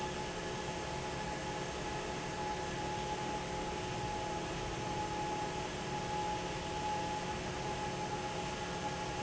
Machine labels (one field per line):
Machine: fan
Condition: normal